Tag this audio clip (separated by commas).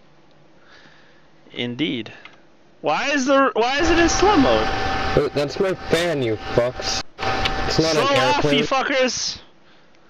Speech